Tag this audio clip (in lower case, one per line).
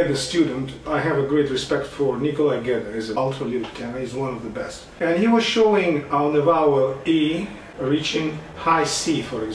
speech